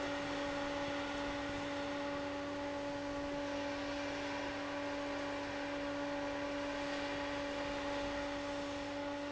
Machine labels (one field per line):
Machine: fan